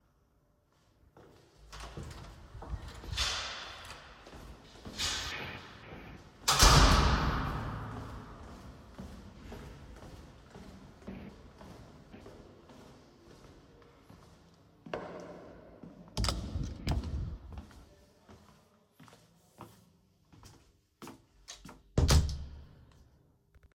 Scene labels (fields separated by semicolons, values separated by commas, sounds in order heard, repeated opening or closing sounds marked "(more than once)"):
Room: hallway; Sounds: door (more than once), footsteps